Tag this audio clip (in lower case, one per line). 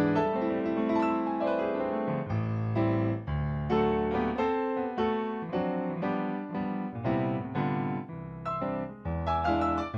music